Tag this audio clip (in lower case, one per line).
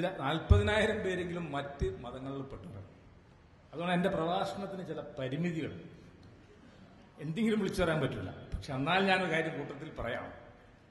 monologue
speech
man speaking